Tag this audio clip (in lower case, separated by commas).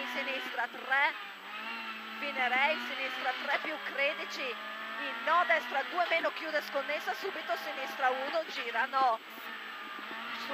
vehicle, car, speech